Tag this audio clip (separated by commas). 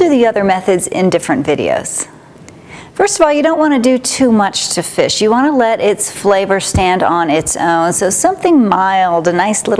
Speech